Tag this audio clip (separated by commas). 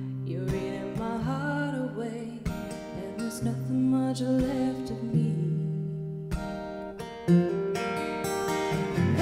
Music